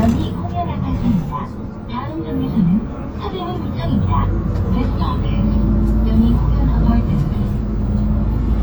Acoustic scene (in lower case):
bus